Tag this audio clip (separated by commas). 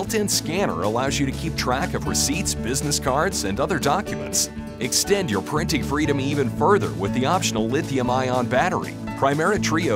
Speech, Music